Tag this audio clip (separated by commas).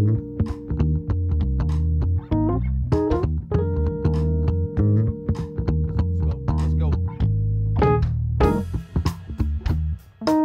Music